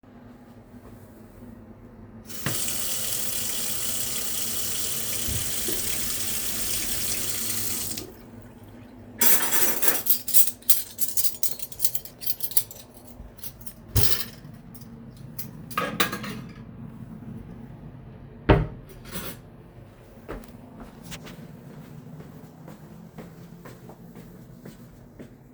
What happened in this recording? I stand at the kitchen sink and rinse dishes under running water, clatter cutlery and plates while I take them out the dishwasher, open and close a kitchen drawer to put away utensils, and walk a few steps across the kitchen floor after.